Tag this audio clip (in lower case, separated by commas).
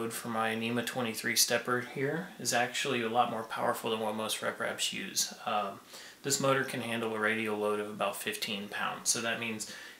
speech